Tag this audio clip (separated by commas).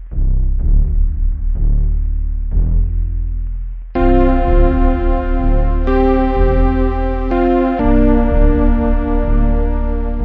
Music, Theme music